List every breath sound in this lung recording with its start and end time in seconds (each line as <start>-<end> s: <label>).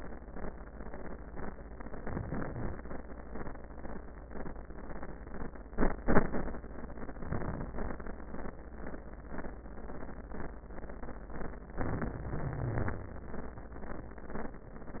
2.02-2.75 s: inhalation
7.23-7.77 s: inhalation
11.83-13.41 s: inhalation
12.35-13.41 s: wheeze